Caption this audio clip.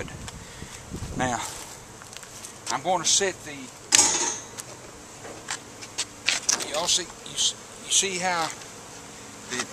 Many insects are buzzing constantly, during which rustling and scuffing are ongoing, an adult male speaks, and metal clanking occurs